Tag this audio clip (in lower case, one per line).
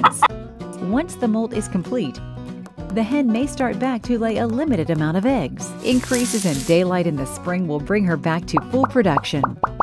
speech
plop
music